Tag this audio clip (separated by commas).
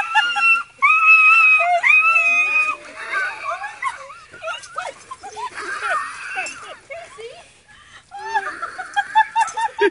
dog whimpering